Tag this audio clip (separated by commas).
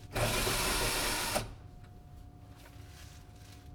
Tools